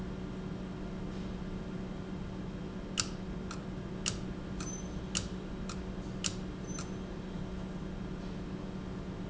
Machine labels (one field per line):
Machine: valve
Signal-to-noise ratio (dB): -6 dB